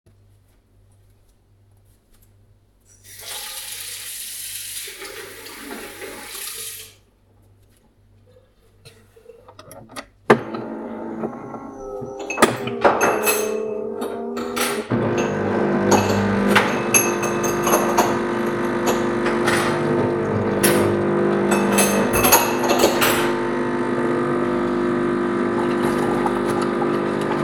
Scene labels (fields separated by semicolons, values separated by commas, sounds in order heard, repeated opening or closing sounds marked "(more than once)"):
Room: kitchen; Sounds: running water, coffee machine, cutlery and dishes